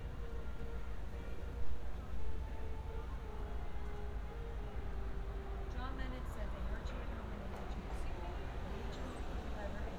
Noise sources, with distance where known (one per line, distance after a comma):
music from a fixed source
person or small group talking, near